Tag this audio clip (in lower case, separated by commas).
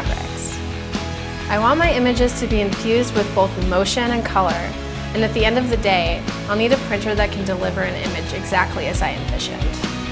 music, speech